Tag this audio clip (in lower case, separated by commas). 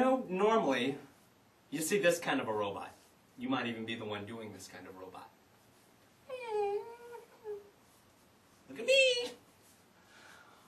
speech